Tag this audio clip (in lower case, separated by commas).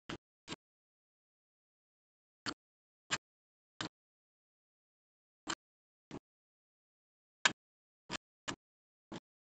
inside a small room